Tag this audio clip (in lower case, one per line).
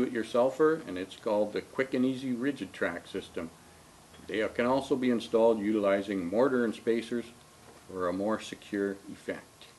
speech